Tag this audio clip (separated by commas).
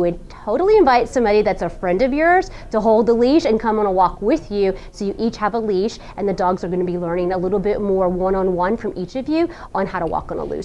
Speech